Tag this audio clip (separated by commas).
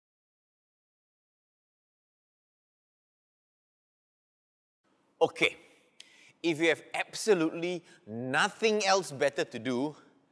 Speech